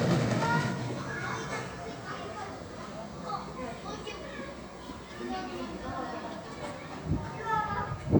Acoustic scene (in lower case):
park